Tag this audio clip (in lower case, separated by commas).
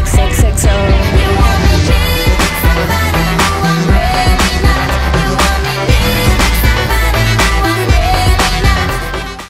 music, exciting music, soundtrack music